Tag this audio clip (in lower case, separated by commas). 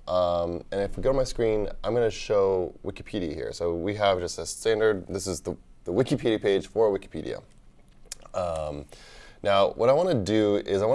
speech